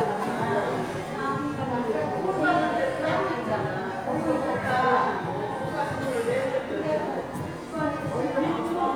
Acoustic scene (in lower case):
crowded indoor space